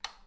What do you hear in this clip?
plastic switch